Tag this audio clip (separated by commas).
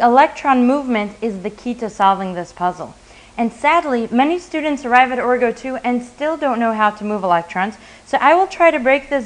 Speech